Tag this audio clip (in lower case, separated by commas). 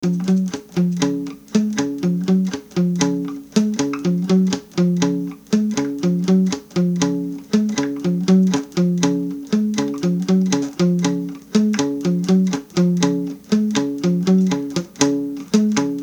music, musical instrument, plucked string instrument, guitar, acoustic guitar